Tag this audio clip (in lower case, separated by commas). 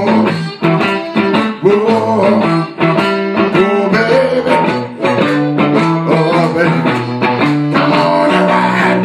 music, singing, blues, musical instrument, guitar